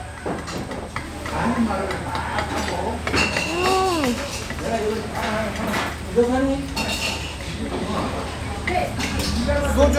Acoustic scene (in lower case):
restaurant